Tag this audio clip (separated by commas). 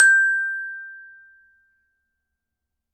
Percussion, Musical instrument, Mallet percussion, Music, Glockenspiel